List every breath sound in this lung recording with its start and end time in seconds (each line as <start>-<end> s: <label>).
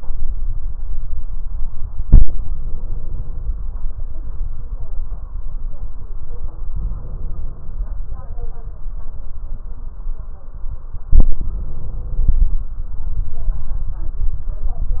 2.53-3.71 s: inhalation
6.73-7.91 s: inhalation
11.38-12.56 s: inhalation